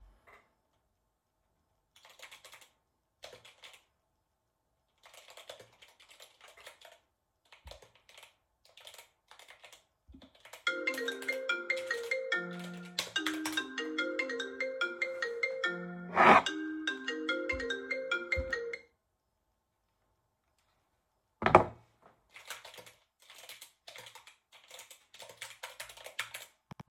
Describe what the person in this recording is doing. I was typing text on the keyboard when the phone started ringing. I picked it up, hung up, and put it on the table, then continued typing.